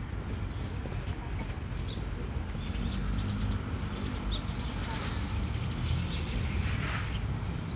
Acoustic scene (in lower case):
park